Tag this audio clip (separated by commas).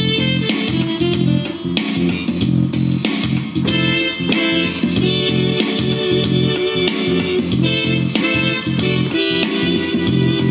Electric piano, Keyboard (musical), Piano